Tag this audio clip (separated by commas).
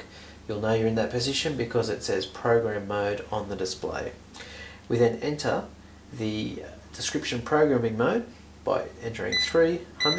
Speech